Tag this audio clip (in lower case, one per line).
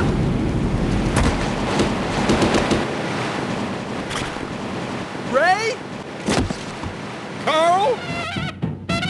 music
speech